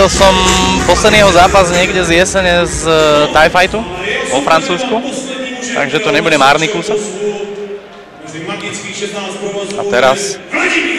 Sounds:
Speech, Music

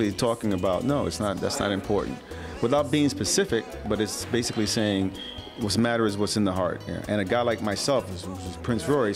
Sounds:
Speech, New-age music, Music

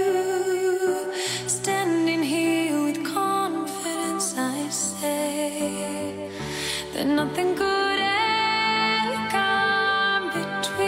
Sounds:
Music

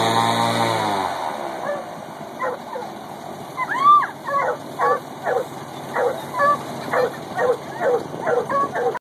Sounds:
Animal, Domestic animals, Dog, Bow-wow, Yip

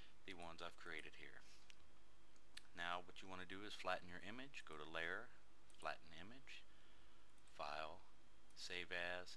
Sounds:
Speech, inside a small room

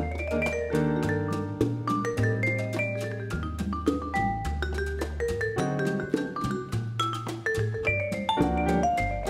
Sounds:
playing vibraphone

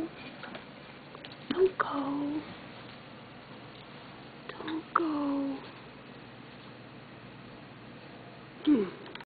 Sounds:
Speech

